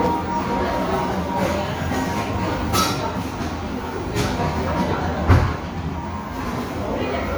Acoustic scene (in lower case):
crowded indoor space